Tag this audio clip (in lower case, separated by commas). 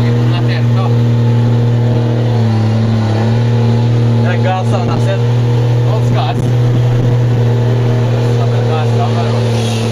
speech